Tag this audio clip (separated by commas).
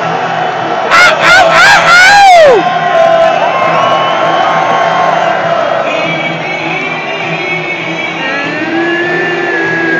Speech